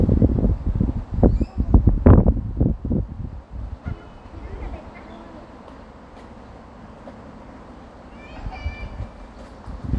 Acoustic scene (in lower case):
residential area